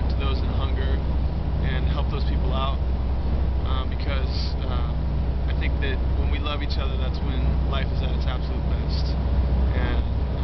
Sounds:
Speech

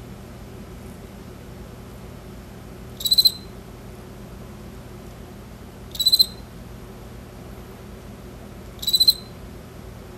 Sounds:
cricket chirping

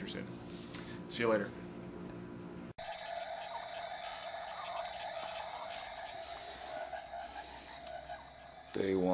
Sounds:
Speech

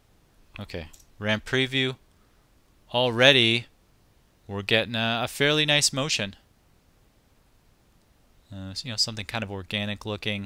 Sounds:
Speech

